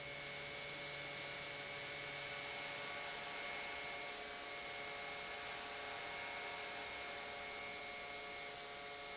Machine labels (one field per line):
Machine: pump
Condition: normal